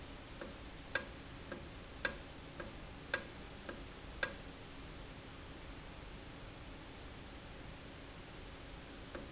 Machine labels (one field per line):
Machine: valve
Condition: normal